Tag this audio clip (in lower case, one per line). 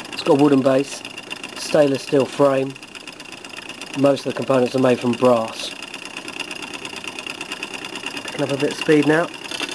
speech